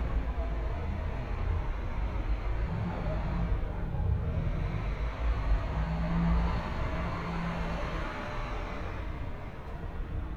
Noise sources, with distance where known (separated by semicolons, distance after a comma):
large-sounding engine, near